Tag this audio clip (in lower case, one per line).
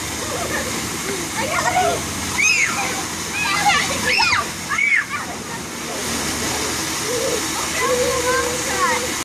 speech